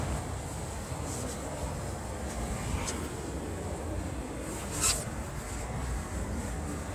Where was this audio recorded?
in a residential area